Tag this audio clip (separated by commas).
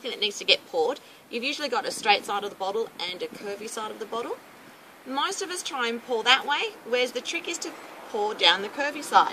Speech, Vehicle